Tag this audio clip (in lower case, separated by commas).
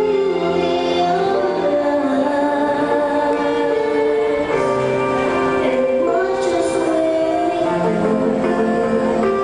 music